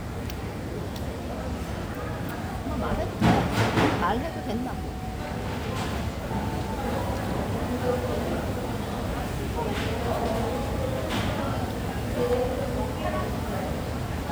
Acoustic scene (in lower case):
cafe